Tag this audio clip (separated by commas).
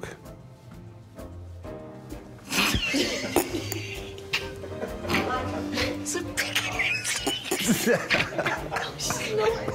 Speech, Music